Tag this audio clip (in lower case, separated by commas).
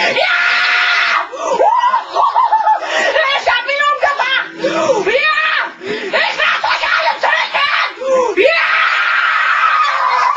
children shouting